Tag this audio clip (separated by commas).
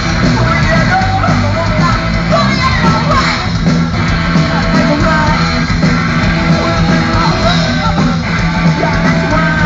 Music